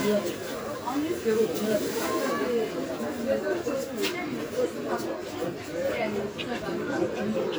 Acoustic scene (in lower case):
park